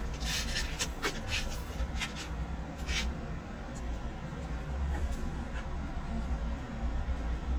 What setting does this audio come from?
residential area